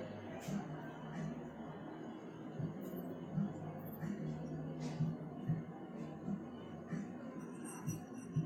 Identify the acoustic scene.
cafe